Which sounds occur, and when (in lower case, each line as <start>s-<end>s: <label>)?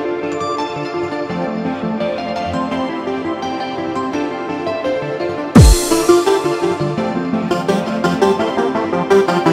0.0s-9.5s: music